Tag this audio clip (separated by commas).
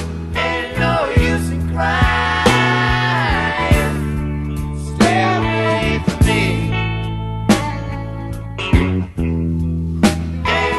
Music